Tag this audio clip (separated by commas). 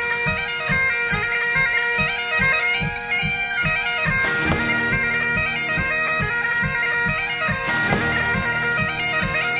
playing bagpipes